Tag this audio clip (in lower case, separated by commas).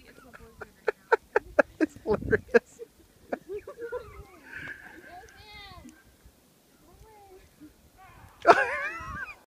animal, speech